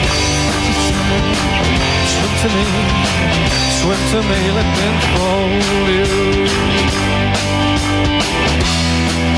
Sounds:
music

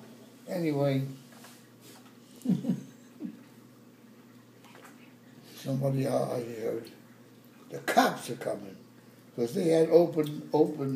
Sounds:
speech

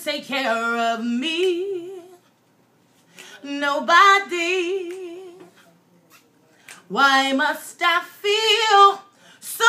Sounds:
female singing

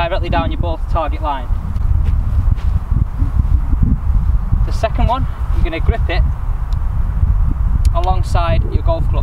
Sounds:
golf driving

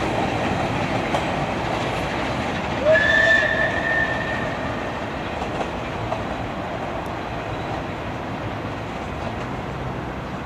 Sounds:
rail transport
vehicle
train wagon
train

